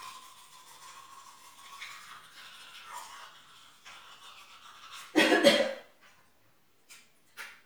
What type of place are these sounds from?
restroom